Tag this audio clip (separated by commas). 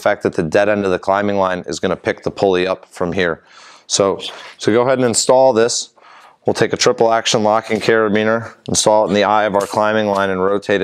Speech